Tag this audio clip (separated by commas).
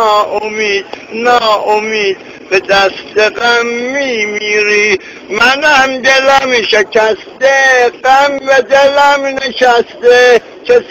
Speech